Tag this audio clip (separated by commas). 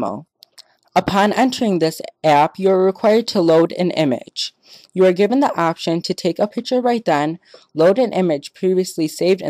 Speech